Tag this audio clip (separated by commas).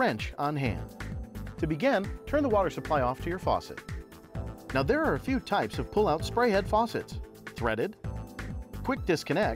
Speech, Music